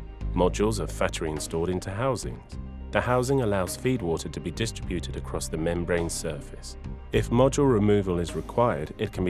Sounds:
music, speech

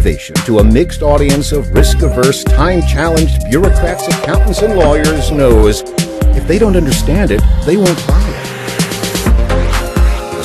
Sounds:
speech, music

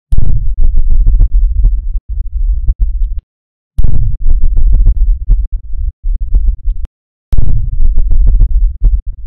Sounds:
rumble

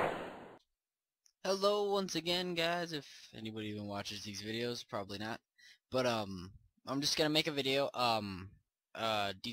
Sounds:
speech

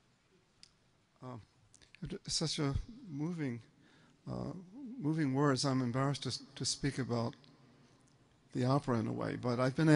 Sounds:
speech

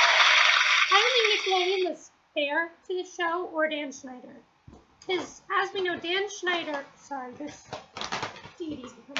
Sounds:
speech

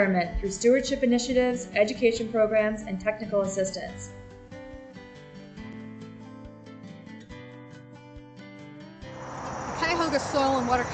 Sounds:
music, speech

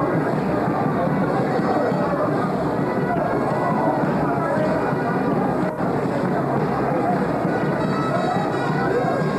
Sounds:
wind instrument

